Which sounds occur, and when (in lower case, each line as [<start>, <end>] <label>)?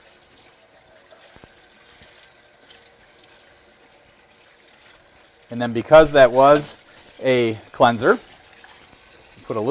[0.00, 9.70] mechanisms
[0.00, 9.70] faucet
[1.27, 1.44] clicking
[1.95, 2.07] clicking
[5.43, 6.72] male speech
[7.15, 7.61] male speech
[7.74, 8.14] male speech
[9.37, 9.70] male speech